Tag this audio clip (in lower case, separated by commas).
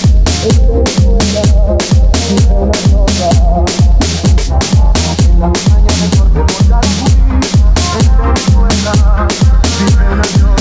music, funk